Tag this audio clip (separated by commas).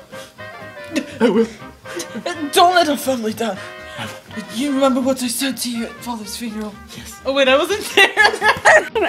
inside a small room, Speech, Music